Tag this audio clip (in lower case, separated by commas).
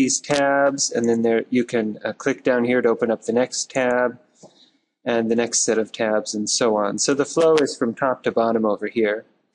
speech